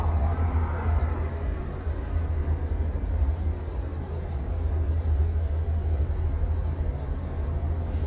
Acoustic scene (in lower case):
car